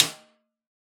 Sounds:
Percussion, Musical instrument, Drum, Snare drum, Music

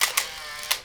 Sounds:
Camera, Mechanisms

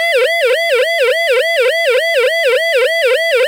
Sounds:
Siren, Alarm

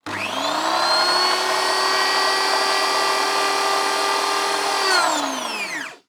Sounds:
Domestic sounds

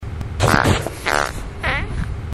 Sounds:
Fart

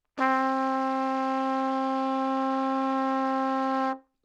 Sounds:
Music, Trumpet, Musical instrument, Brass instrument

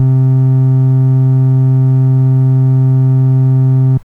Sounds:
Musical instrument, Music, Organ, Keyboard (musical)

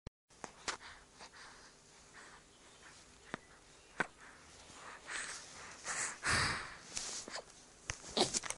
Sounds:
Breathing, Respiratory sounds

